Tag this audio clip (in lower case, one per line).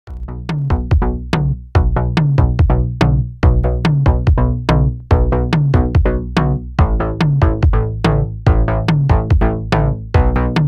drum machine